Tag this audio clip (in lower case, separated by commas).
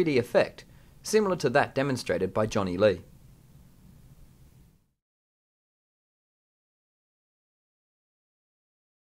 speech